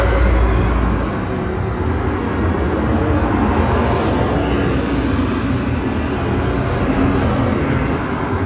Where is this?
on a street